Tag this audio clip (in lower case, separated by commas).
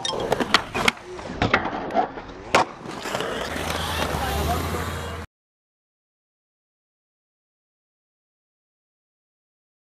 skateboard, speech